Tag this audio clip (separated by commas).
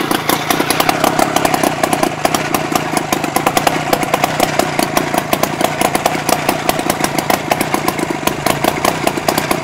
Engine, Idling, Vehicle